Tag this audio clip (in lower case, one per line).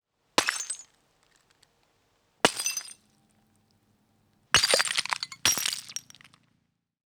glass
shatter